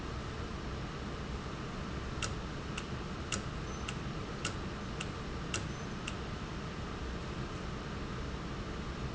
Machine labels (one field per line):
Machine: valve